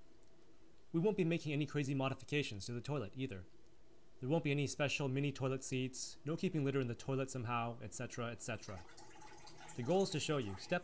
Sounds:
speech

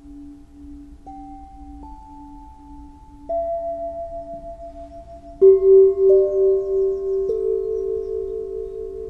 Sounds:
singing bowl

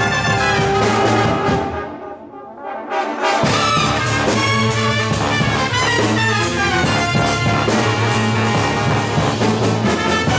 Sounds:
classical music
music
double bass

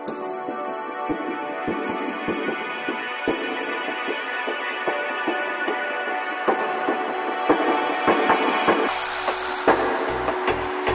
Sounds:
music

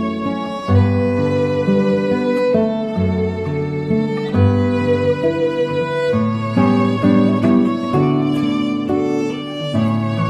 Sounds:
musical instrument
acoustic guitar
guitar
fiddle
plucked string instrument
music

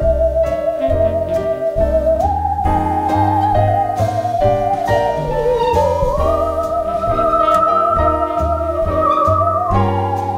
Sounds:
playing theremin

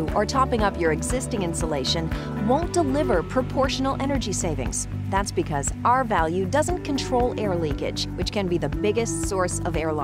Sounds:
music
speech

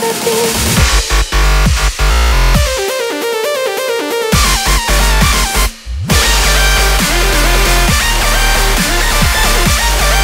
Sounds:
dubstep
electronic music
music

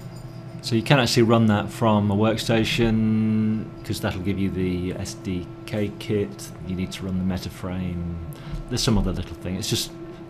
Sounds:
speech

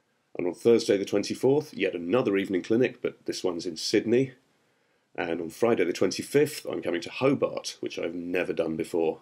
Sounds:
speech

